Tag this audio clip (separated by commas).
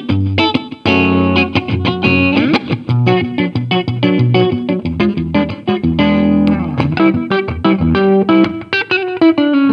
Music, Electric guitar, Musical instrument, Guitar, Plucked string instrument